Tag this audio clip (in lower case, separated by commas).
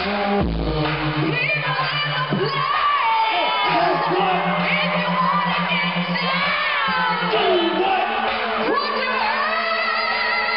female singing, music